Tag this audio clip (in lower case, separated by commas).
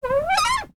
door, home sounds, cupboard open or close